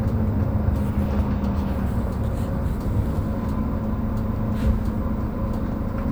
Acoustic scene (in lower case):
bus